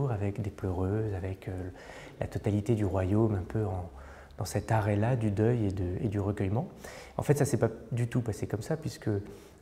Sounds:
Speech

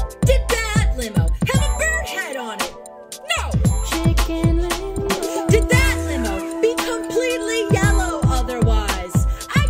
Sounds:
Music, Speech

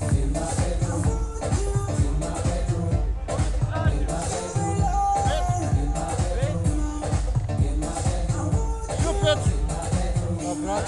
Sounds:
Music, Speech

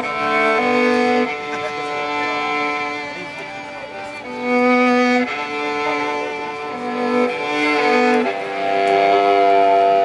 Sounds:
Music, Violin, Musical instrument, Speech

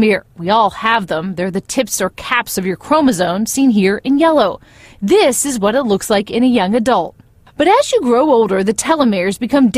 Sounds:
Speech

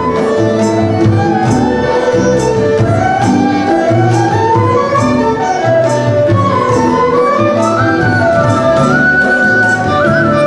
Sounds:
Music, Independent music

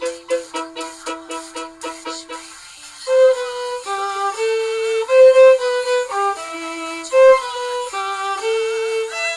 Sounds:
Musical instrument, fiddle, Music

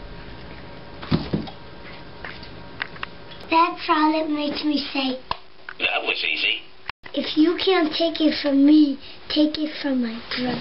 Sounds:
inside a small room, kid speaking, Speech

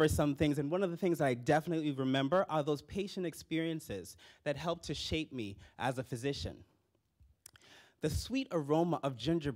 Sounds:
Speech

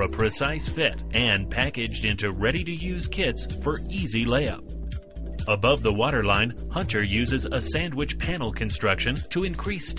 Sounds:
Speech, Music

